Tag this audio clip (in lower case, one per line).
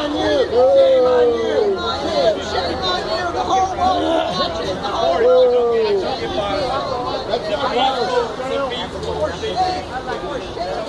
crowd